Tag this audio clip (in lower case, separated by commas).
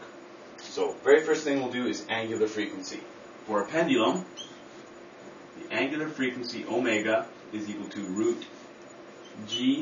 speech